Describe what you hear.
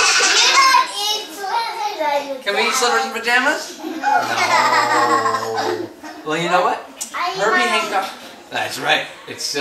Children speak and laugh with a man